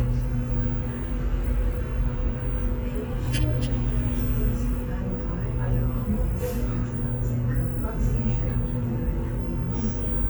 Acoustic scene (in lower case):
bus